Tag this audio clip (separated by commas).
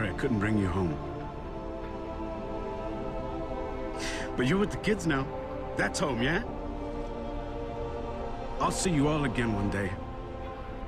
Speech, Music